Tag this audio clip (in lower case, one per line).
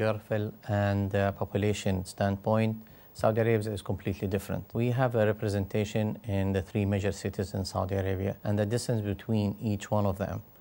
speech